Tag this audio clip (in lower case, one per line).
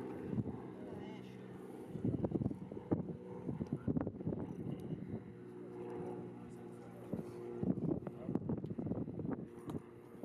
speech